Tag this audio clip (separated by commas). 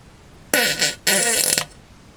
Fart